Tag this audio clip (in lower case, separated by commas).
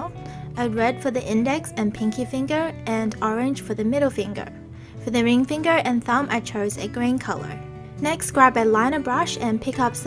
speech, music